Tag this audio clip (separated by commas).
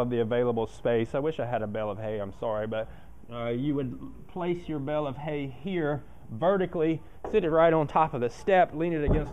Speech